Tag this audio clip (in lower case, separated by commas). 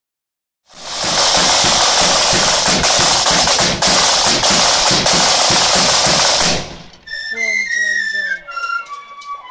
drum, music